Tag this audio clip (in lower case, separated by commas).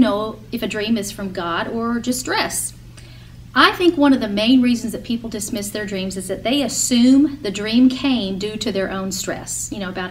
speech, inside a small room